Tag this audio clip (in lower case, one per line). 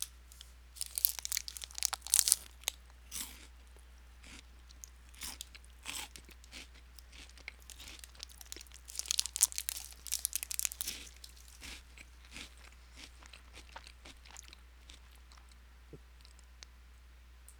chewing